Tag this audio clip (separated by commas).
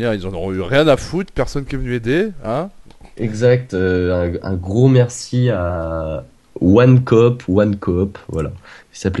Speech